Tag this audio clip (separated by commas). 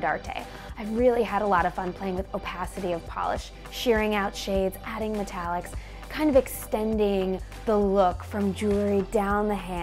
Music, Speech